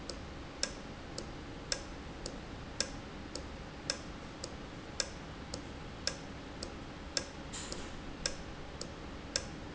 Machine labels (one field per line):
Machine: valve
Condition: normal